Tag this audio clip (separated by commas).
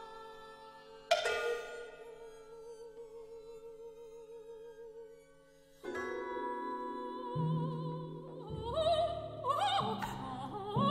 Music, Female singing